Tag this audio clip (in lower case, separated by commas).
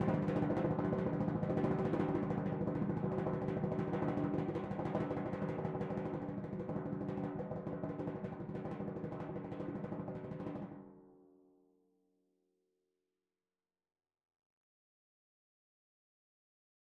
percussion, drum, music, musical instrument